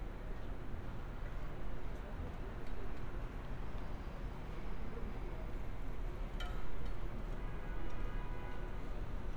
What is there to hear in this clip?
car horn